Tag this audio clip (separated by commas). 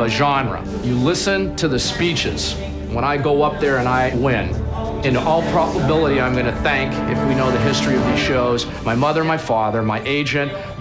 Speech, Music